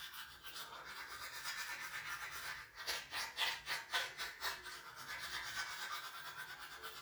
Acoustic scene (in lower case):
restroom